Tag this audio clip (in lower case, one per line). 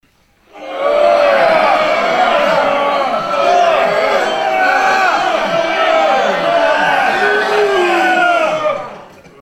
crowd
human group actions